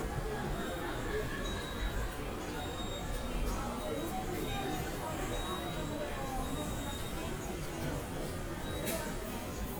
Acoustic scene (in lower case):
subway station